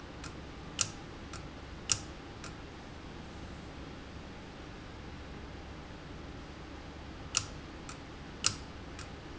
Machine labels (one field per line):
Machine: valve